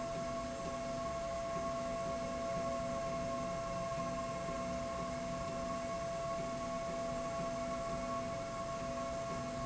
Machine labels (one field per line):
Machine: slide rail